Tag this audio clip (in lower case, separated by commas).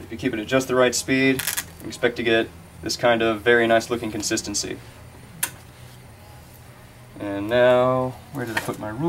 inside a small room, speech